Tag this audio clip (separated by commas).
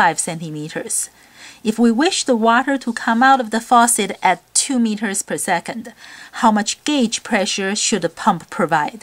Speech